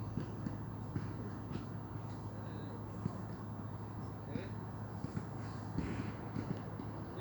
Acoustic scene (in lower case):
park